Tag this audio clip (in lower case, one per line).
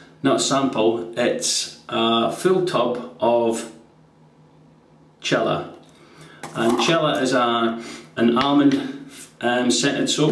speech